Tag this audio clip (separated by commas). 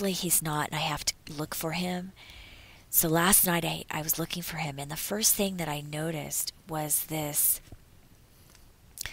Speech